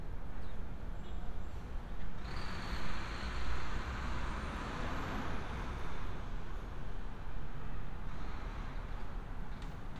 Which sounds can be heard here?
large-sounding engine